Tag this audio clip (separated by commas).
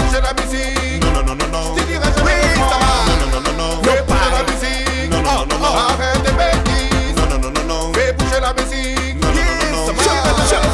Exciting music, Music